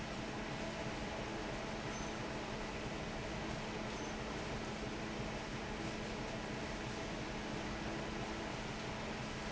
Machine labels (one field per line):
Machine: fan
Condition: normal